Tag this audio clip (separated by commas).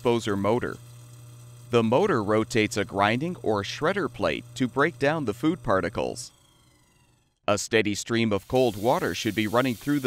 Speech